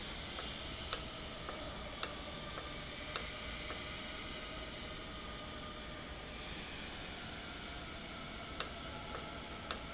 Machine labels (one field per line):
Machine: valve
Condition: normal